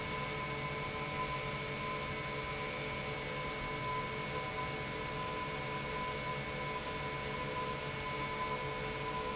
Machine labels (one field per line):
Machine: pump